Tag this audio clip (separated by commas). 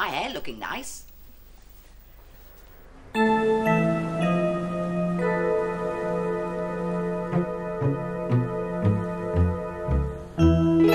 Music, Speech